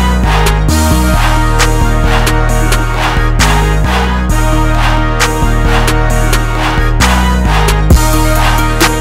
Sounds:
music

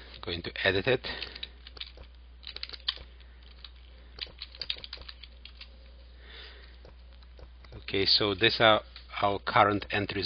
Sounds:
typing

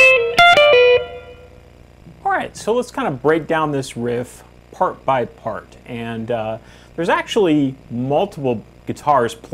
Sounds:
speech, strum, musical instrument, guitar, plucked string instrument, music

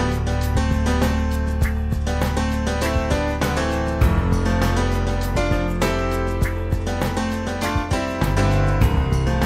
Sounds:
music

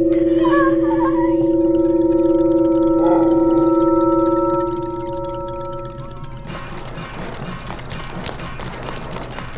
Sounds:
chirp tone, sine wave

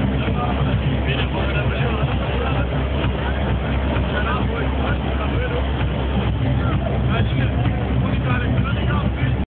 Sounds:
electronic music, techno, speech, music

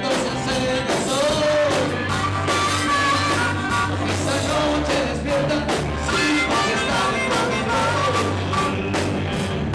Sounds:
music, rock and roll

